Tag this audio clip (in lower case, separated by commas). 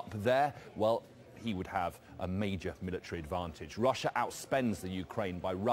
speech